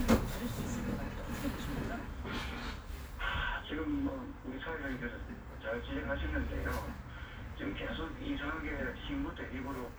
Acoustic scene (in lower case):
bus